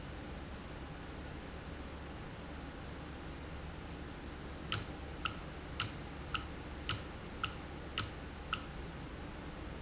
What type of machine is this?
valve